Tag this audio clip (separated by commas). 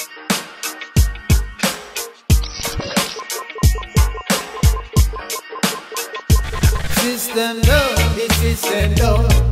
Music